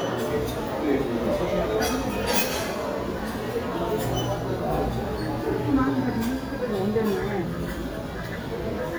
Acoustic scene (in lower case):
crowded indoor space